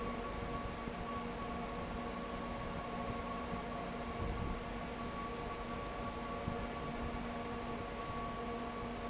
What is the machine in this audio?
fan